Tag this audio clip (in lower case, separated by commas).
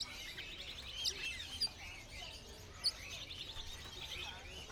bird, animal, wild animals